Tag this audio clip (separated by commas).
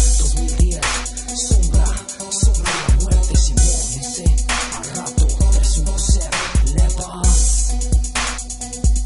Hip hop music, Music